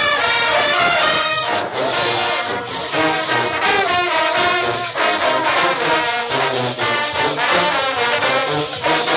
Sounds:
speech, jazz, music

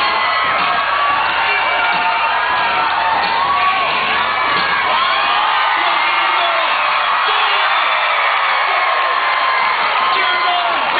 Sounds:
music, speech

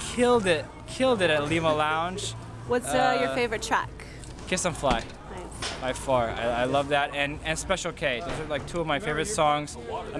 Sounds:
speech

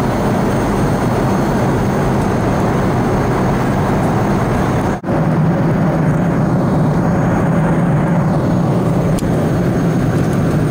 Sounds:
aircraft, airplane, vehicle

